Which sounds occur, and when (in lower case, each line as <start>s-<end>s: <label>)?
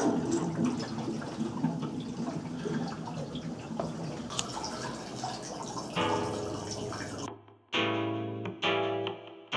0.0s-7.3s: mechanisms
0.0s-7.3s: water
4.3s-4.4s: tick
5.9s-9.5s: music
7.2s-7.3s: generic impact sounds
7.5s-7.5s: generic impact sounds
8.4s-8.5s: generic impact sounds
9.0s-9.1s: generic impact sounds